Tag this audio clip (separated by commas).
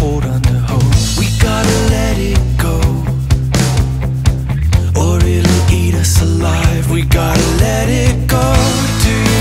Music